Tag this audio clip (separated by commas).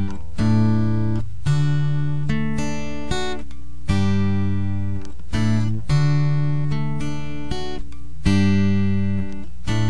Music, Acoustic guitar, Musical instrument, Guitar, Strum, Plucked string instrument